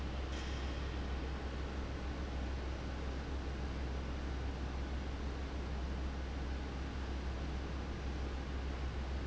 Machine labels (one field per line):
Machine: fan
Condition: abnormal